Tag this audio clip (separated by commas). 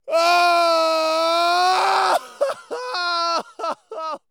Human voice, Screaming, Crying